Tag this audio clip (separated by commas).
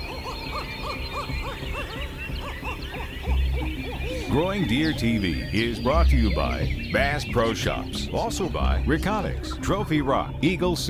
Fowl, Goose, Honk